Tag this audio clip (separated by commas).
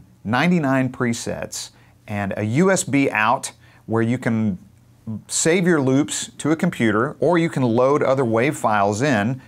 Speech